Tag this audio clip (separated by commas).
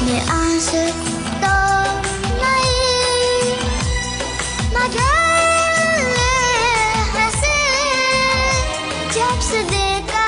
child singing